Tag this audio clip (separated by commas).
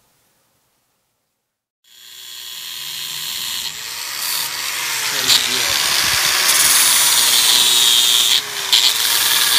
Tools, Power tool